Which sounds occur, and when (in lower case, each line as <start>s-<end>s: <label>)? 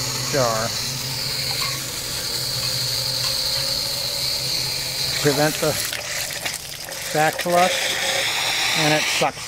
0.0s-9.4s: pump (liquid)
0.2s-9.4s: conversation
0.3s-0.7s: male speech
1.4s-1.8s: generic impact sounds
2.6s-2.7s: generic impact sounds
2.9s-3.7s: generic impact sounds
5.1s-5.9s: male speech
7.1s-7.7s: male speech
8.6s-9.4s: male speech